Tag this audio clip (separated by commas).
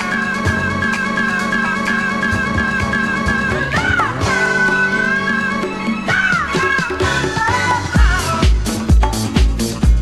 Music